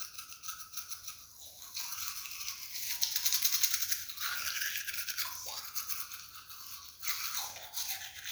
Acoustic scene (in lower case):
restroom